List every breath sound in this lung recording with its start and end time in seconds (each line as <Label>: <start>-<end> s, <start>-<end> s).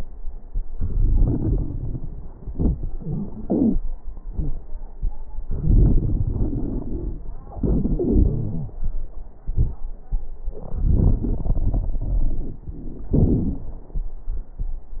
Inhalation: 0.76-2.29 s, 5.47-7.25 s, 10.66-12.68 s
Exhalation: 2.47-3.80 s, 7.59-8.77 s, 13.10-13.71 s
Wheeze: 8.23-8.77 s
Crackles: 0.76-2.29 s, 2.47-3.80 s, 5.47-7.25 s, 10.66-12.68 s, 13.10-13.71 s